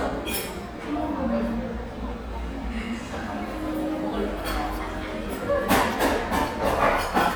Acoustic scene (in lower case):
cafe